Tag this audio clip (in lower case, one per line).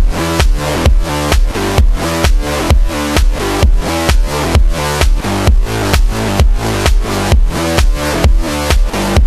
music